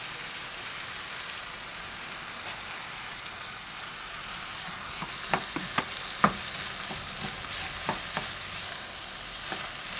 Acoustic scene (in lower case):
kitchen